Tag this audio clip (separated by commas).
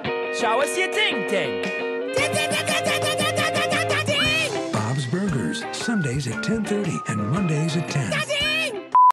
Music, Speech